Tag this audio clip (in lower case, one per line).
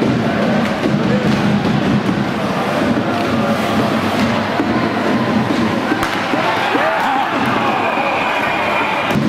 playing hockey